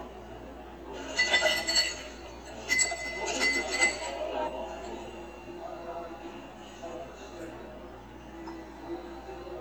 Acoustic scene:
cafe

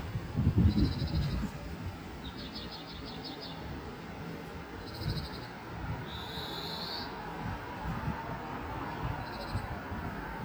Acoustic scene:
street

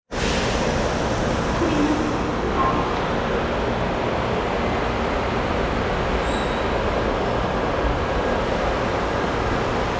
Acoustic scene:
subway station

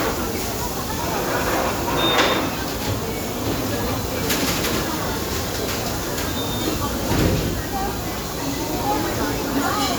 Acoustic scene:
restaurant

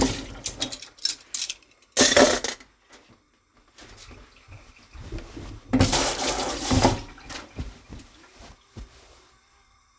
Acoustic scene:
kitchen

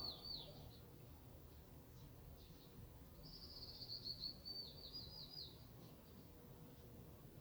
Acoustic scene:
park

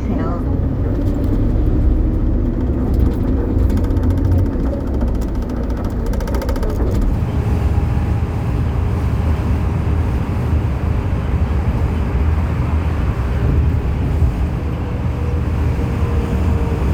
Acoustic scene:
bus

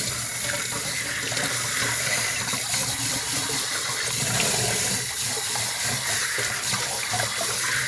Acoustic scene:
kitchen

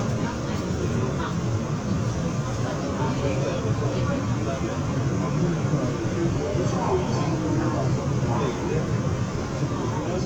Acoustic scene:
subway train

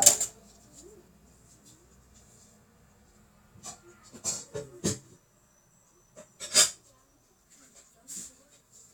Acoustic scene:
kitchen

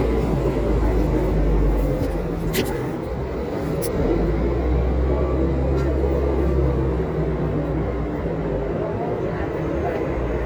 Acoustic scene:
residential area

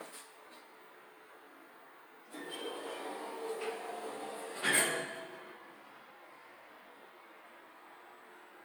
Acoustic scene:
elevator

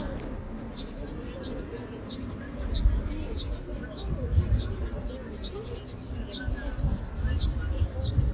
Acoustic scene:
park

